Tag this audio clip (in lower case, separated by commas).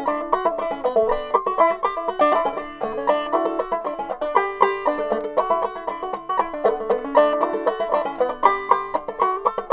music